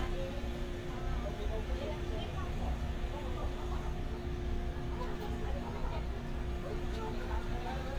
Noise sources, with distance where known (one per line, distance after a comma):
unidentified human voice